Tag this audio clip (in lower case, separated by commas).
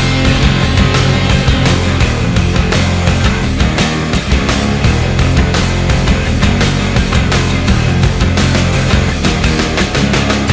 music